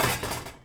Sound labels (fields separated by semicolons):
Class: cupboard; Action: closing; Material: wooden